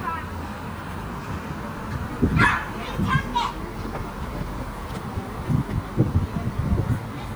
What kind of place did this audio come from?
park